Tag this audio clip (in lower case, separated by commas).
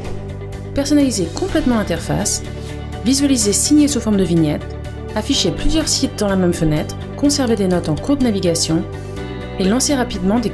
speech, music